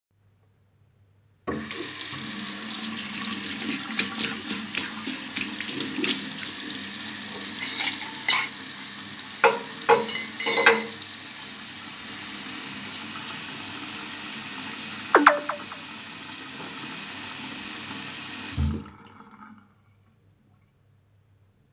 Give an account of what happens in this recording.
I did the washing up with cuttleries and I got a message.